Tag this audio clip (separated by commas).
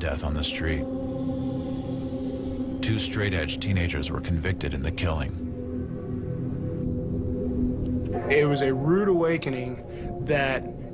Music, Speech